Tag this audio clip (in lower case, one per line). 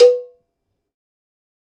cowbell
bell